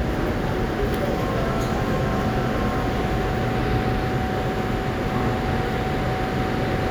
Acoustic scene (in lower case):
subway station